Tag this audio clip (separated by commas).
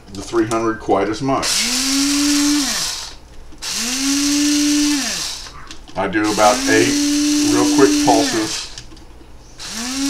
Blender